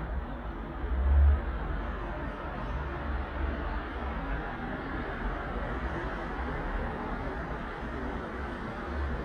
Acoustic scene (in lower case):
street